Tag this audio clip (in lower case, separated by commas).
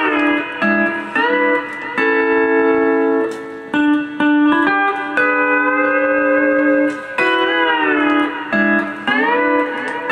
inside a small room, musical instrument, slide guitar, tapping (guitar technique), guitar, music